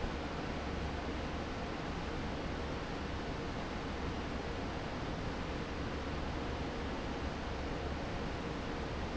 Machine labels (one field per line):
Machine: fan